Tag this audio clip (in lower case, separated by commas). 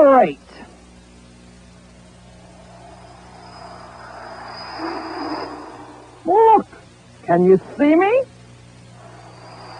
speech